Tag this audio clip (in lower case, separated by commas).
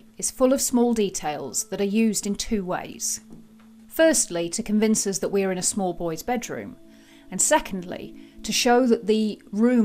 music, inside a small room, speech